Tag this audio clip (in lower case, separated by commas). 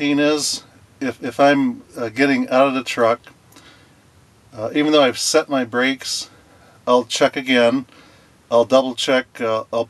speech